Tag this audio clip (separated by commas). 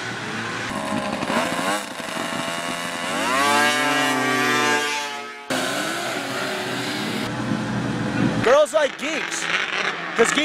driving snowmobile